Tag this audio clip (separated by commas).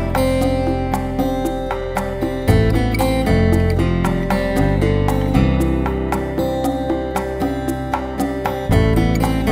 Music